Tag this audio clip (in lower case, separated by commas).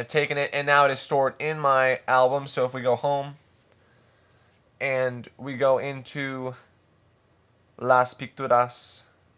speech